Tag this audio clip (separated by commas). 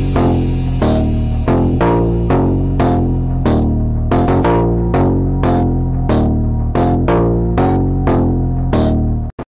Music